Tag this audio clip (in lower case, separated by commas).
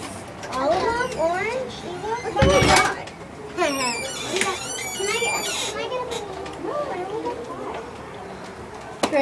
inside a small room, children playing, speech